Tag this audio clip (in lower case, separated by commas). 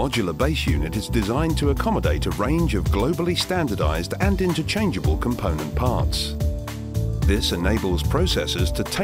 speech, music